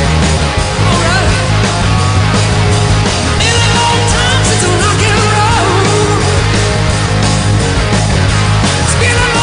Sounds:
Music, Rock and roll

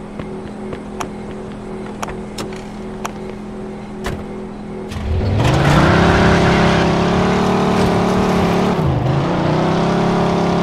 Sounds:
Car

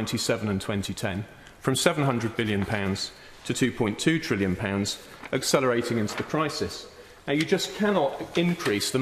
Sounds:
Speech

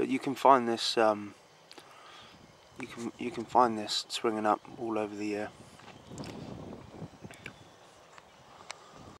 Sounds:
Speech

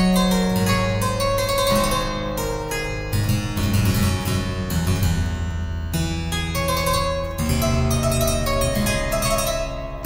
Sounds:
Piano, Harpsichord, Music, Musical instrument, playing harpsichord

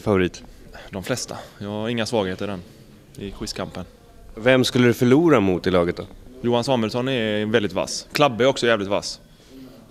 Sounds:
Speech

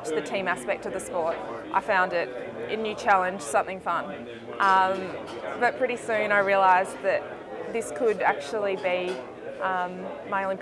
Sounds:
Speech

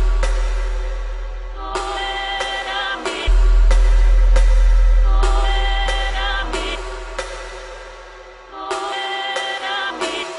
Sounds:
Music

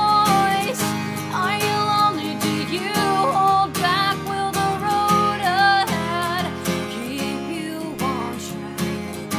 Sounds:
Music

